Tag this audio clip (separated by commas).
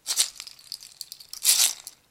Musical instrument, Percussion, Rattle (instrument), Music